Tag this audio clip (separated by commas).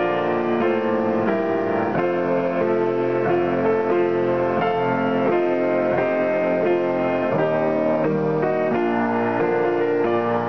Music